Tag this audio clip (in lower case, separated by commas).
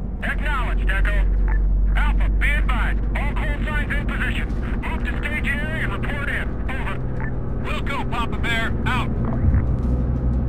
speech